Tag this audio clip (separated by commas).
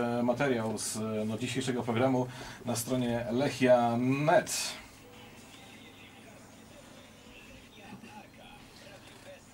Speech